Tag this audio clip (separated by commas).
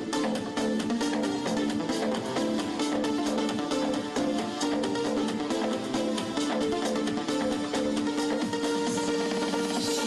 Music